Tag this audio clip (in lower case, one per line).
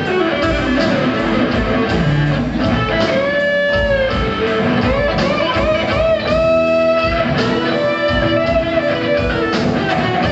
progressive rock
heavy metal
punk rock
rock and roll
soundtrack music
house music
music